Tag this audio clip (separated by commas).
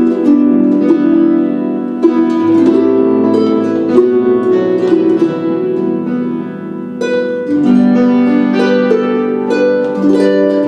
playing harp, Harp, Music